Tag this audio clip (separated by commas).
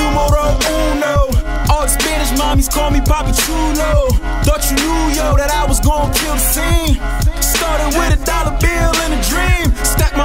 Rhythm and blues, Music